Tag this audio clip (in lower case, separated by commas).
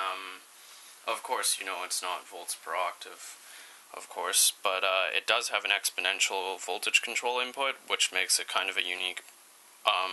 speech